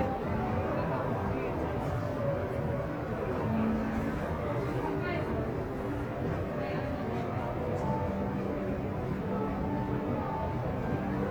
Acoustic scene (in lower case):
crowded indoor space